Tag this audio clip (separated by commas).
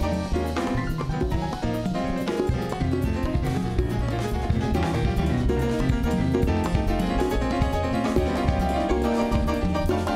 Salsa music, Music of Latin America, Musical instrument, Music